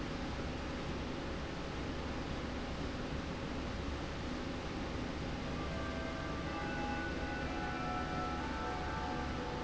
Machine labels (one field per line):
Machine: slide rail